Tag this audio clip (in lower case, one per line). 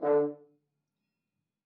musical instrument
brass instrument
music